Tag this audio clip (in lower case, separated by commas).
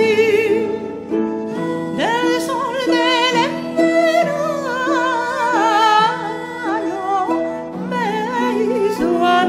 tender music, music